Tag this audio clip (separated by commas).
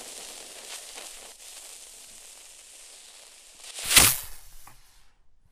Insect, Wild animals, Animal